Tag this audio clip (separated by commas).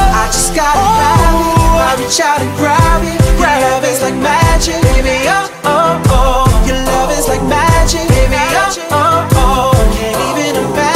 Singing